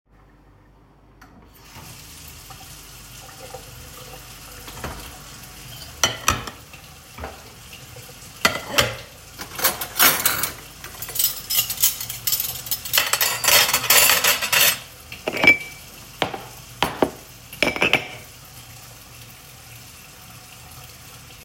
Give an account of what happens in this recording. Water was running in the kitchen sink to fill a one-liter bottle with water. While the bottle was filling, I was putting clean dishes and cutlery into the cupboard.